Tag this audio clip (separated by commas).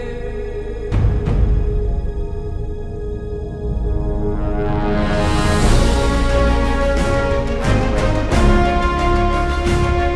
Music